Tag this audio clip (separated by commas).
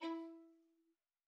Musical instrument, Music, Bowed string instrument